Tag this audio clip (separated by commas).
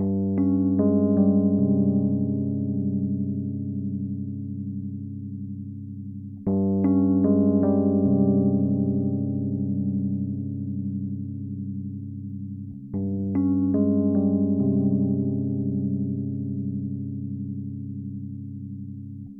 Piano, Keyboard (musical), Musical instrument, Music